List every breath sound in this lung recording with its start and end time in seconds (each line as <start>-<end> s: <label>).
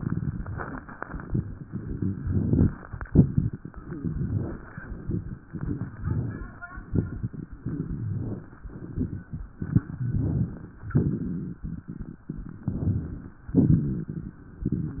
0.00-0.80 s: crackles
2.20-2.68 s: inhalation
2.20-2.68 s: crackles
3.09-3.57 s: exhalation
3.09-3.57 s: crackles
4.00-4.61 s: inhalation
4.00-4.61 s: crackles
4.82-5.35 s: exhalation
4.82-5.35 s: crackles
5.50-5.98 s: inhalation
5.50-5.98 s: crackles
6.03-6.60 s: exhalation
6.91-7.48 s: inhalation
6.91-7.48 s: crackles
7.59-8.10 s: crackles
7.63-8.14 s: exhalation
8.14-8.65 s: inhalation
8.14-8.65 s: crackles
8.84-9.36 s: exhalation
8.84-9.36 s: crackles
10.02-10.70 s: inhalation
10.02-10.70 s: crackles
10.93-11.61 s: exhalation
10.93-11.61 s: crackles
12.66-13.36 s: inhalation
12.66-13.36 s: crackles
13.57-14.42 s: exhalation
13.57-14.42 s: crackles